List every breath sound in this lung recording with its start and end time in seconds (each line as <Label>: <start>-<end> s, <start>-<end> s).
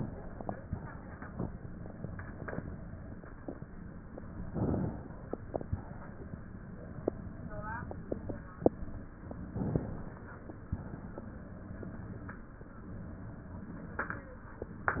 Inhalation: 4.48-5.74 s, 9.53-10.77 s, 14.95-15.00 s
Exhalation: 5.73-6.99 s, 10.77-11.87 s